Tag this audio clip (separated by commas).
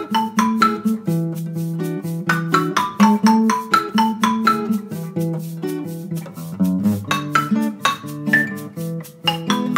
xylophone, Musical instrument, Music, inside a small room